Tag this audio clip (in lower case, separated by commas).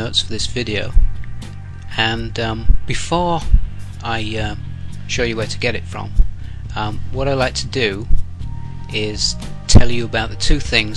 speech, music